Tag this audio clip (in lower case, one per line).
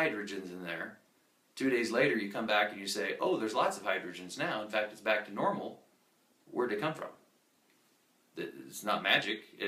inside a small room
speech